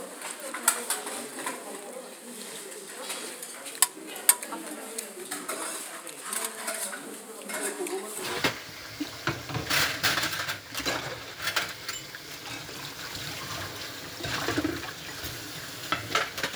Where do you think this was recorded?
in a kitchen